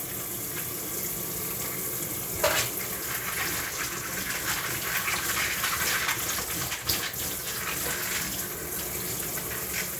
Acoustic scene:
kitchen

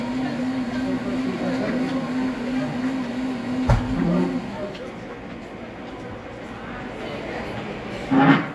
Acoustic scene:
cafe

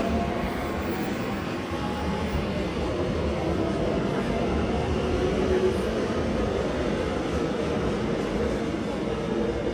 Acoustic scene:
subway station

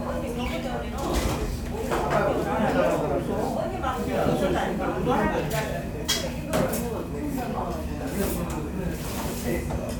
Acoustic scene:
crowded indoor space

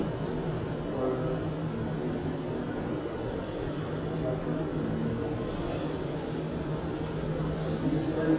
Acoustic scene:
subway station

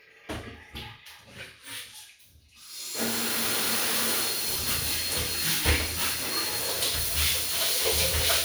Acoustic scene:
restroom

